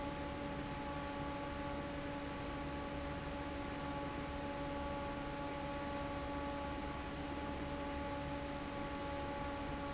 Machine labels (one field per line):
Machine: fan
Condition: normal